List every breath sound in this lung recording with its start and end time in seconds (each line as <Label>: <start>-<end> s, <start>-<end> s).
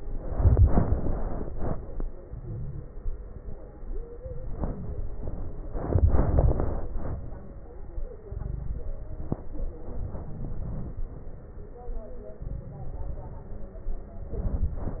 Inhalation: 2.24-2.87 s, 4.22-5.11 s, 8.28-8.89 s, 9.97-10.58 s, 12.43-13.09 s
Exhalation: 2.94-3.57 s, 5.17-5.77 s, 10.64-11.04 s, 13.13-13.81 s
Crackles: 2.24-2.87 s, 2.94-3.57 s, 4.22-5.11 s, 5.17-5.77 s, 8.28-8.89 s, 9.97-10.58 s, 10.64-11.04 s, 12.43-13.09 s, 13.13-13.81 s